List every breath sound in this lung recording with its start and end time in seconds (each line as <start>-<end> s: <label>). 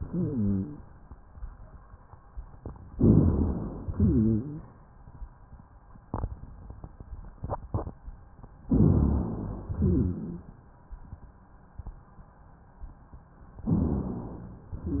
0.00-0.84 s: exhalation
0.00-0.84 s: rhonchi
2.92-3.87 s: inhalation
2.93-3.87 s: rhonchi
3.91-4.75 s: exhalation
3.91-4.75 s: rhonchi
8.66-9.73 s: inhalation
8.66-9.73 s: rhonchi
9.75-10.59 s: exhalation
9.75-10.59 s: rhonchi
13.62-14.68 s: inhalation
13.62-14.68 s: rhonchi